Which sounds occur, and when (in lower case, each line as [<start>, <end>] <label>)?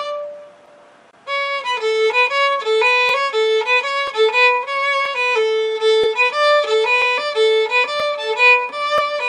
[0.01, 0.91] music
[1.16, 9.25] music